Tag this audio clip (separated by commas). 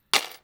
Tools